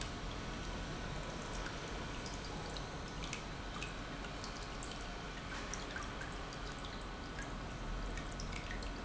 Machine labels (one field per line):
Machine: pump